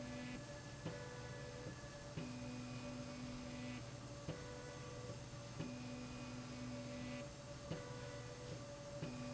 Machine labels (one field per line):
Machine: slide rail